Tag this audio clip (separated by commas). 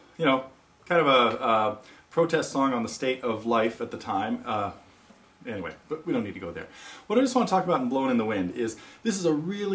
Speech